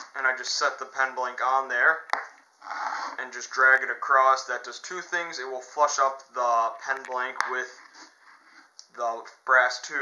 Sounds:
Speech, inside a small room, Wood

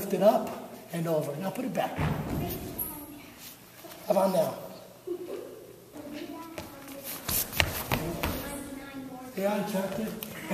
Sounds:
Speech

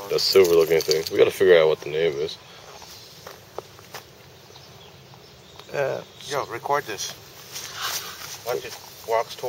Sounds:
Speech, Animal, outside, rural or natural

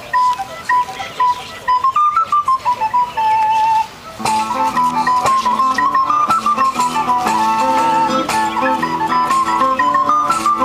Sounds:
Music, Speech, outside, rural or natural

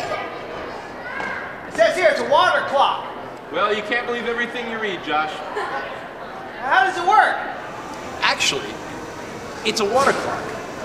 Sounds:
Speech

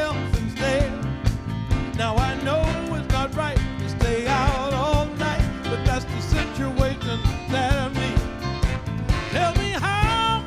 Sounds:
Music

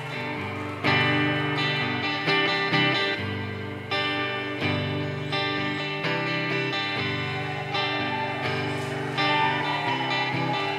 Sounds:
Music

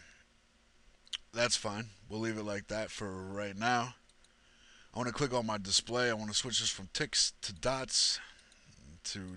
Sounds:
Speech

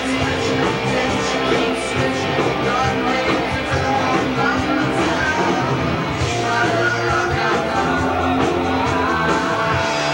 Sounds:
Music, Roll, Rock and roll

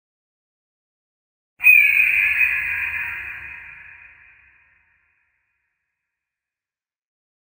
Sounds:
Sound effect

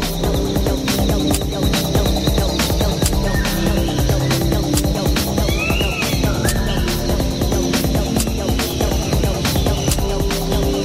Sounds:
Music

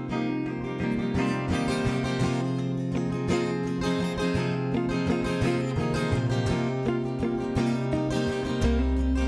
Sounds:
Music

